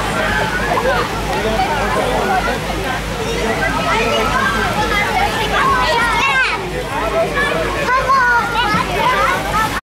Gurgling sound of a stream as people are speaking